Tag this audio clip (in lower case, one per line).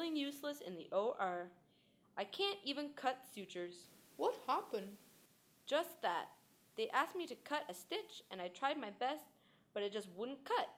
female speech
speech
conversation